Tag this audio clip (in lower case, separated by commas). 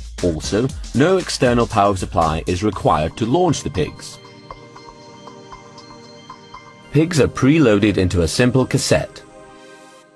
speech, music